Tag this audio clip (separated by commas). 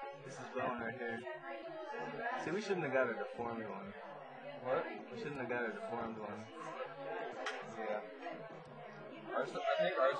Speech